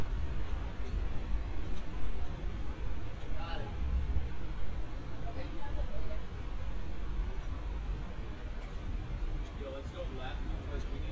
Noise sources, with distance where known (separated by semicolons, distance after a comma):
person or small group talking, near